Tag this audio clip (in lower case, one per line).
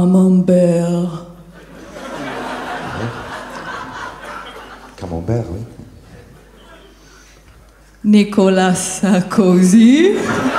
inside a large room or hall
speech